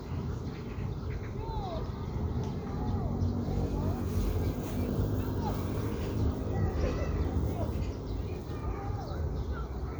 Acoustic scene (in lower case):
park